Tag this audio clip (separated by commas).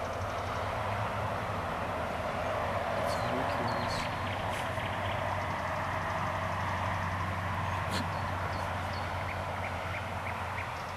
Speech